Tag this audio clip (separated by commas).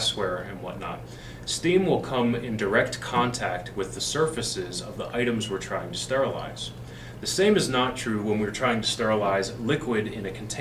Speech